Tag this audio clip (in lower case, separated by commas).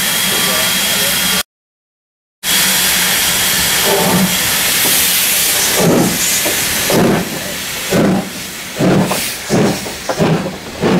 steam, hiss